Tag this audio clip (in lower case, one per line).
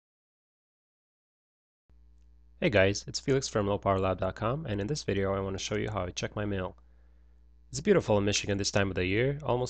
speech